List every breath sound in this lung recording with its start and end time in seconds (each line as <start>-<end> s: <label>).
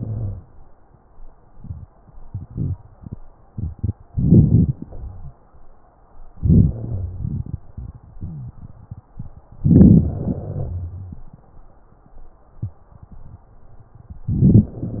0.00-0.42 s: wheeze
4.08-4.72 s: inhalation
4.74-5.37 s: exhalation
4.74-5.37 s: wheeze
6.36-6.80 s: inhalation
6.75-7.31 s: wheeze
6.79-9.59 s: exhalation
8.17-8.56 s: wheeze
9.67-10.06 s: inhalation
10.05-10.77 s: exhalation
10.05-11.32 s: wheeze
14.34-14.75 s: inhalation